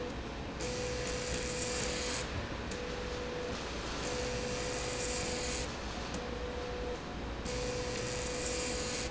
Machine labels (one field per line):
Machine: slide rail